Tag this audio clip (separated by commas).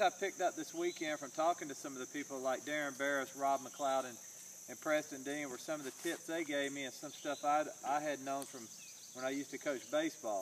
Speech